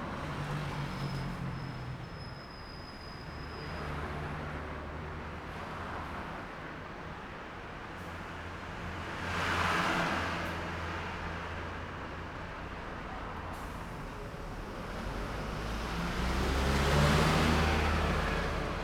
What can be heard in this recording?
car, motorcycle, bus, truck, car wheels rolling, motorcycle engine accelerating, bus brakes, bus engine idling, bus compressor, bus engine accelerating, truck engine accelerating